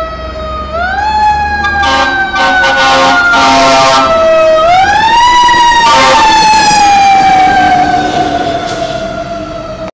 A fire truck sounds the siren and honks horn